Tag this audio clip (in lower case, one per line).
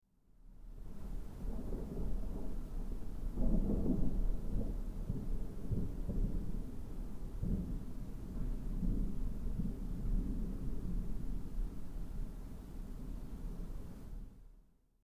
water
thunder
rain
thunderstorm